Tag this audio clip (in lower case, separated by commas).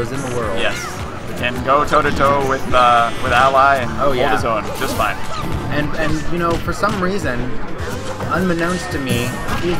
crash, speech